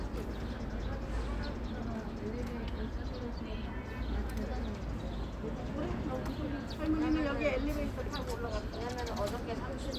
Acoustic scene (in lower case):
park